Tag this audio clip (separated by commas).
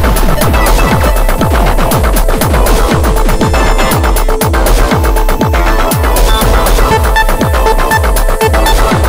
Music